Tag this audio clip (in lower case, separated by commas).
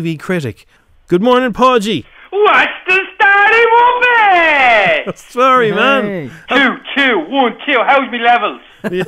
speech